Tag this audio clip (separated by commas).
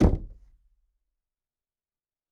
Knock, Wood, home sounds, Door